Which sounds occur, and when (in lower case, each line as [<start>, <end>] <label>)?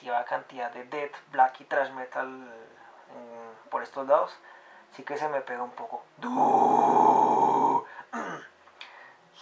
[0.00, 2.62] male speech
[0.00, 9.41] background noise
[3.08, 3.59] male speech
[3.74, 4.38] male speech
[4.42, 4.94] breathing
[4.99, 6.07] male speech
[6.21, 7.88] human sounds
[7.87, 8.15] breathing
[8.15, 8.63] throat clearing
[8.77, 9.33] breathing